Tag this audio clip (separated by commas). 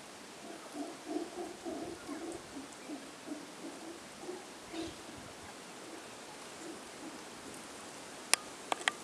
Rustle